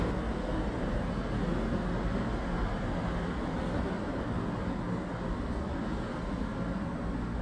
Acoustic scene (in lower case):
residential area